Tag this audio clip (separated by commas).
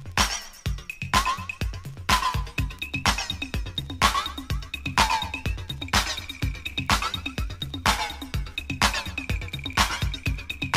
Orchestra, Music